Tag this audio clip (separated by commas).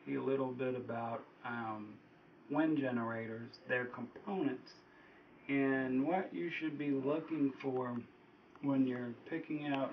Speech